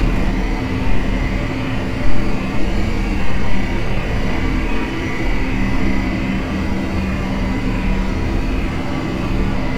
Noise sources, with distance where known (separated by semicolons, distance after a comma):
engine of unclear size, near